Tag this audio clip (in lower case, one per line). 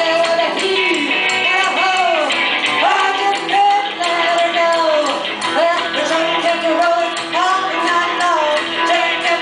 music